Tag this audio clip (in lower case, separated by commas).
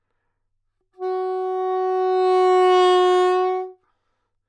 music, musical instrument, woodwind instrument